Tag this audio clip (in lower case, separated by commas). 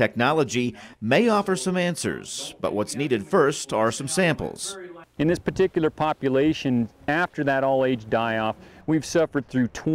speech